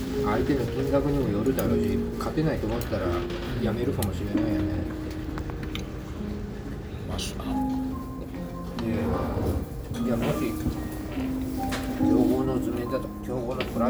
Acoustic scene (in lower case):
restaurant